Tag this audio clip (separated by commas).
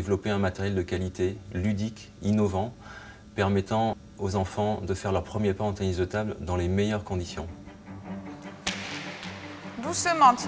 Music, Speech